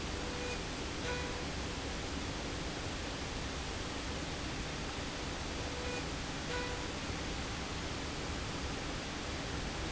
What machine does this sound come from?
slide rail